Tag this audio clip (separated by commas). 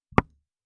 Door, Domestic sounds, Knock